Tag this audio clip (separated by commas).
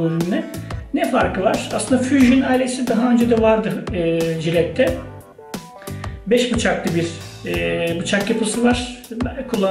Speech, Music